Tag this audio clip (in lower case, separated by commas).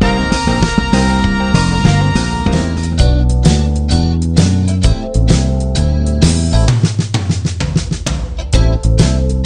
playing bass drum